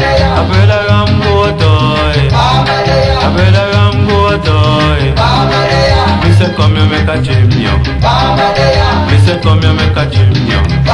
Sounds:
Music

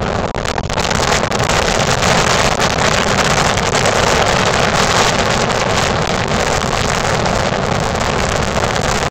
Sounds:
Wind noise (microphone)

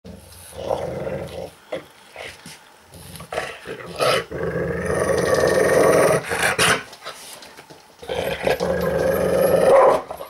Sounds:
dog growling

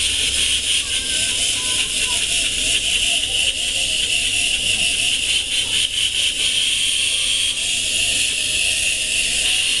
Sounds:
Speech

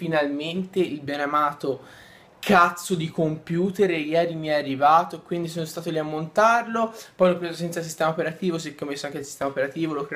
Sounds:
Speech

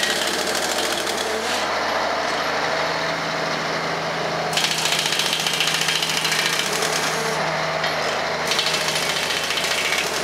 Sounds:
Vehicle, Truck

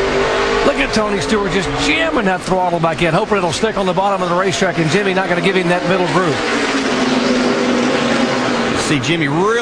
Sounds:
Speech

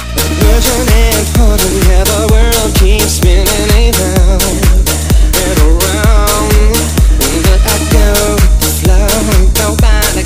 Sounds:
Music

